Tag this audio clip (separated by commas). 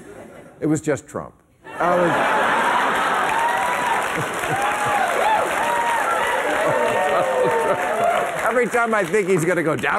Speech, monologue